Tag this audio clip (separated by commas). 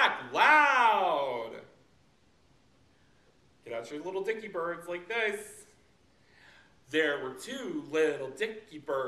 Speech